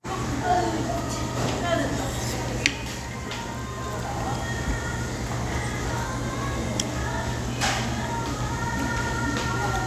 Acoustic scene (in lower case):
restaurant